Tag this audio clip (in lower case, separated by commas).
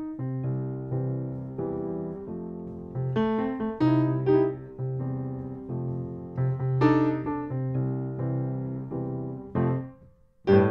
electric piano